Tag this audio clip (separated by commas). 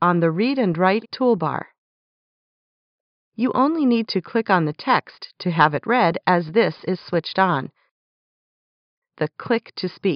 Speech